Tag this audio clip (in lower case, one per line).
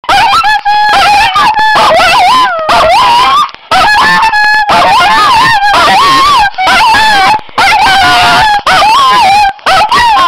dog
animal